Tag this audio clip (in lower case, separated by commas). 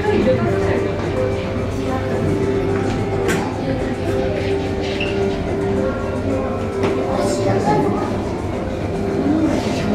music, speech